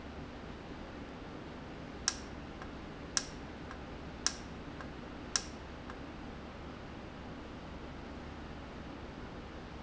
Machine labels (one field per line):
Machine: valve